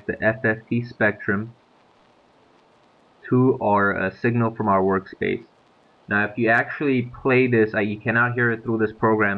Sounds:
speech

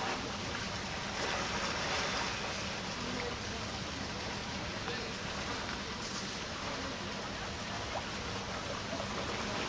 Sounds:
speech, stream

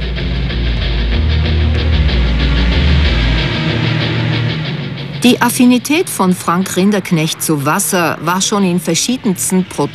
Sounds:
speech, music

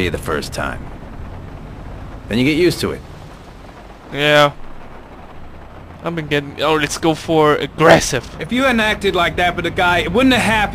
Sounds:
rain, rain on surface

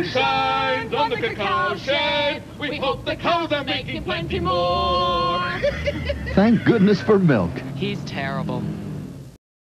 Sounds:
speech

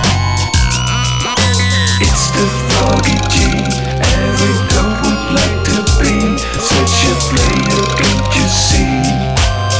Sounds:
soundtrack music, music

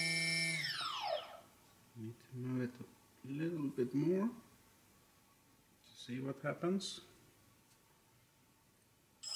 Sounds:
inside a small room, speech

